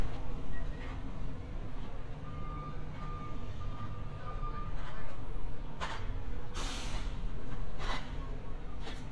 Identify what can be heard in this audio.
unidentified alert signal